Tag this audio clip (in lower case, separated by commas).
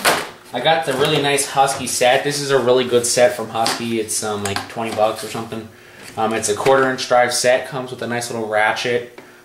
speech